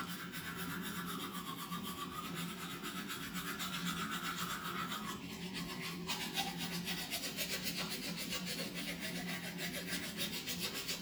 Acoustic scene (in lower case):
restroom